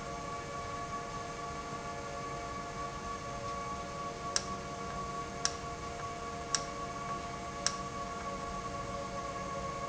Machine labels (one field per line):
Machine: valve